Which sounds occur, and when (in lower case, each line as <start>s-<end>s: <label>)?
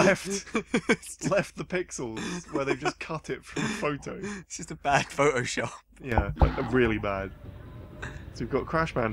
0.0s-0.4s: male speech
0.0s-9.1s: conversation
0.4s-1.5s: laughter
1.2s-5.8s: male speech
2.1s-3.1s: laughter
3.5s-4.4s: laughter
5.9s-7.0s: generic impact sounds
5.9s-7.3s: male speech
7.0s-9.1s: crowd
8.0s-8.3s: generic impact sounds
8.3s-9.1s: male speech